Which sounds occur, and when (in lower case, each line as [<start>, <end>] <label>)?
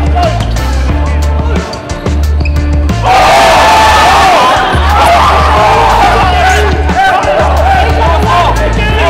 [0.00, 9.05] music
[0.13, 0.34] human voice
[1.39, 1.61] human voice
[1.68, 1.73] squeal
[2.35, 2.48] squeal
[2.99, 6.32] cheering
[6.44, 9.05] speech noise